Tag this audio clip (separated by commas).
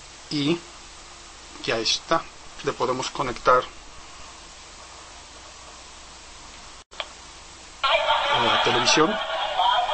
Television, Speech